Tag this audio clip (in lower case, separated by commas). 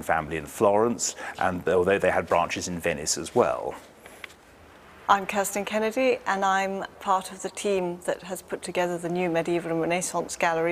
speech